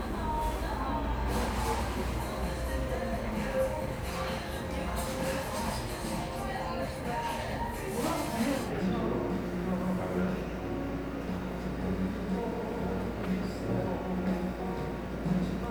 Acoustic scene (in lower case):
cafe